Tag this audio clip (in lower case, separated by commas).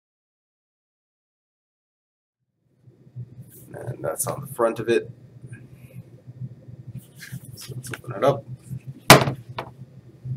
speech